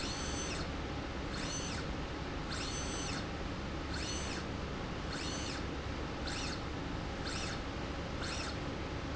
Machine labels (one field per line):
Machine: slide rail